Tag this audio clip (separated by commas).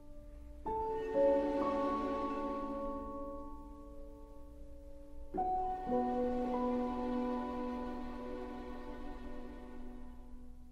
Music